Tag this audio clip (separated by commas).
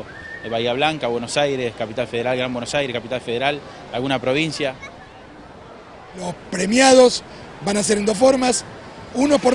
Speech